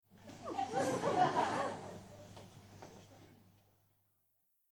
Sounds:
crowd, laughter, human voice, human group actions

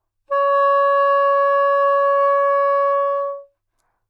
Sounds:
wind instrument, musical instrument, music

